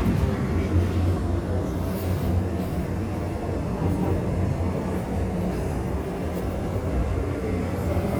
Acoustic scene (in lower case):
subway train